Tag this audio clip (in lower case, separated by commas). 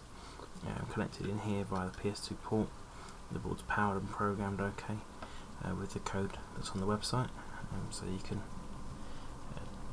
speech